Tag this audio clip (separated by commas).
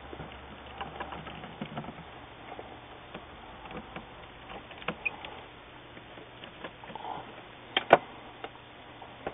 inside a small room